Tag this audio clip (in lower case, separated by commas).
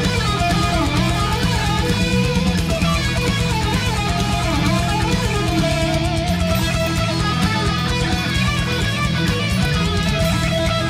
strum, musical instrument, acoustic guitar, music